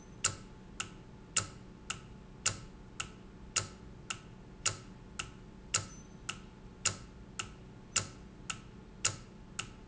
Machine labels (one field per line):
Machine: valve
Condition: normal